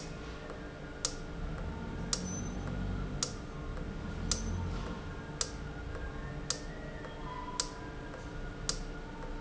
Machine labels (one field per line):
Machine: valve